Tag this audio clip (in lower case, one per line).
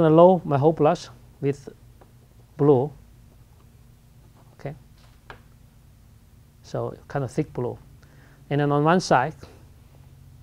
speech